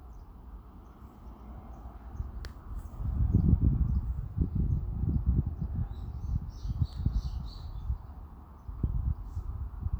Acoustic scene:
residential area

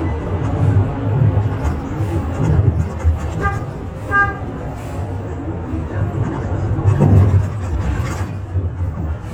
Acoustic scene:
bus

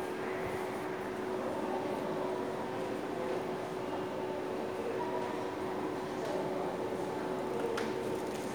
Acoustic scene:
subway station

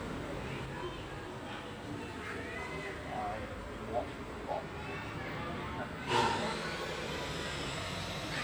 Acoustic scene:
residential area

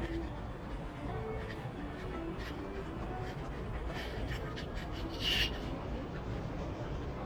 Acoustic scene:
crowded indoor space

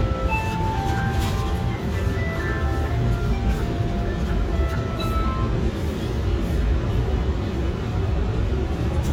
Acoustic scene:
subway train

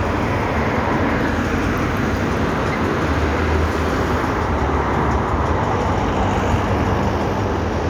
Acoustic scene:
street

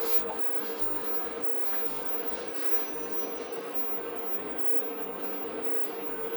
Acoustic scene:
bus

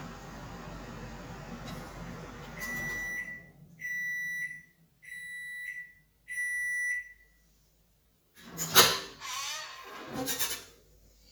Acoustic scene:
kitchen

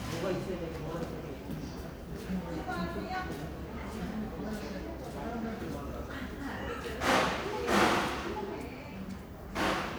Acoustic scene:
crowded indoor space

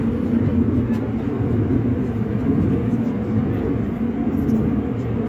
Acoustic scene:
subway train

